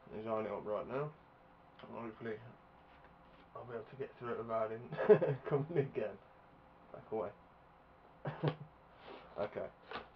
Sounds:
Speech

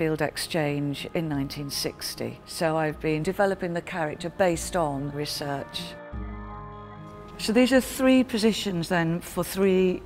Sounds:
Music, Speech

